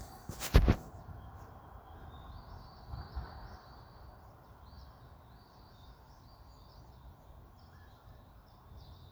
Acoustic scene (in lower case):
park